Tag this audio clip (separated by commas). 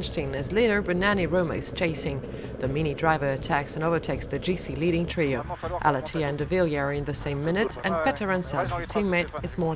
Speech, Car, Vehicle, Motor vehicle (road)